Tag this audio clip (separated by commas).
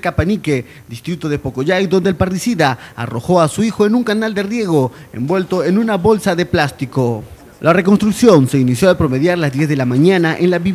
Speech